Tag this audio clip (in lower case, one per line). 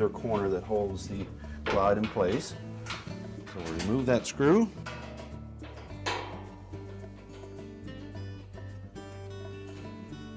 music
speech